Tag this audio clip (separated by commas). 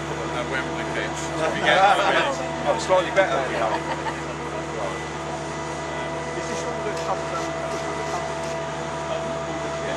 Speech